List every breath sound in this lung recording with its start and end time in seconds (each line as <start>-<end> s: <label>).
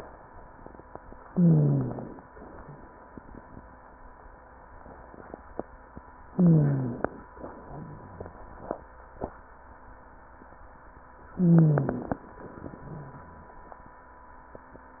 1.22-2.22 s: inhalation
1.22-2.22 s: wheeze
6.32-7.27 s: inhalation
6.32-7.27 s: wheeze
11.33-12.28 s: inhalation
11.33-12.28 s: wheeze